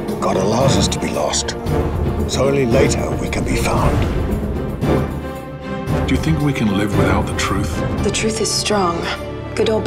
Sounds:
Music, Speech

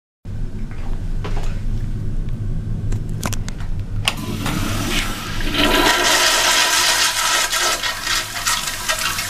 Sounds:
Toilet flush, toilet flushing, Water

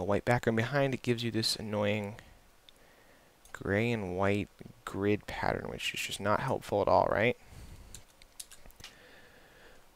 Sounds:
Speech

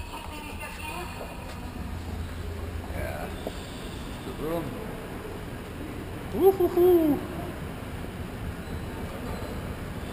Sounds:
Speech

